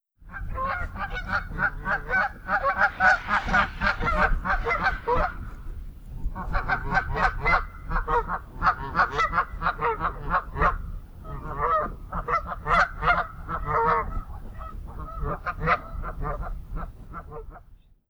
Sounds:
Fowl, livestock, Animal

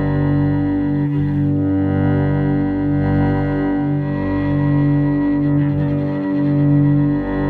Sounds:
Musical instrument, Bowed string instrument, Music

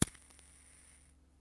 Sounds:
Fire

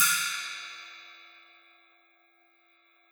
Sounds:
Cymbal, Crash cymbal, Music, Percussion, Musical instrument

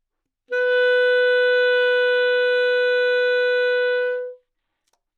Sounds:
Music, Musical instrument, woodwind instrument

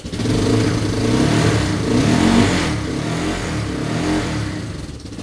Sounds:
Engine, revving

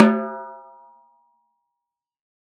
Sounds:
Musical instrument, Percussion, Drum, Snare drum, Music

